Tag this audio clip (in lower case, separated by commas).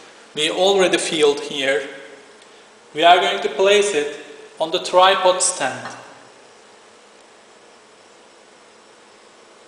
speech